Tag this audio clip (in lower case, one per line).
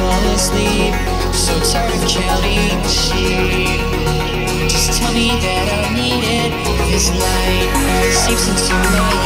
music